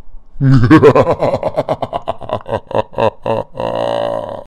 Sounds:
human voice, laughter

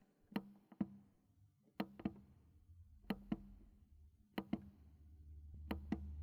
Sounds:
motor vehicle (road), car, vehicle

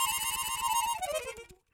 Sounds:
musical instrument, music, harmonica

